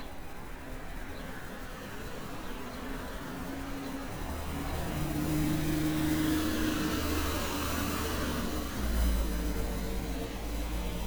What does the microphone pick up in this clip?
medium-sounding engine